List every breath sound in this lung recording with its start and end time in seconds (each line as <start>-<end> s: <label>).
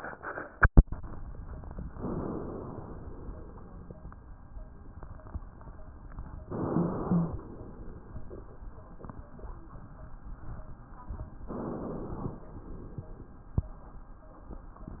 1.88-2.98 s: inhalation
6.47-7.57 s: inhalation
6.66-7.39 s: wheeze
11.46-12.45 s: inhalation